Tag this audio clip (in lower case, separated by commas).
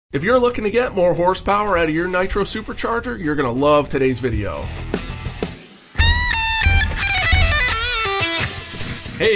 speech, music